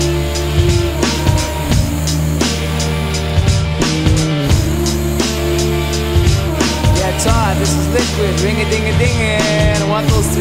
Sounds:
Speech, Music

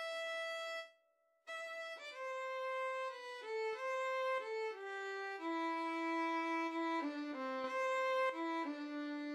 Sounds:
Music, Musical instrument

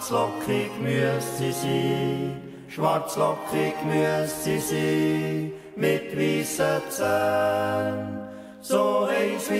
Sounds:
yodelling

